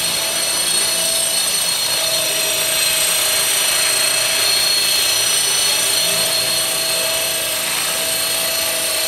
A small motor is running, and metal whirring and whining are present